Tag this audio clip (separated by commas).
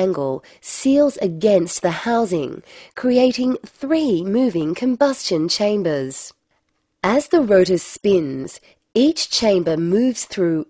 Speech